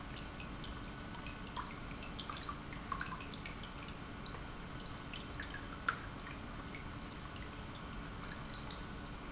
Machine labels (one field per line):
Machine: pump